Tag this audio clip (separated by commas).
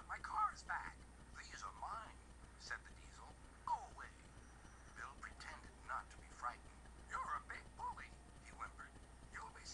Speech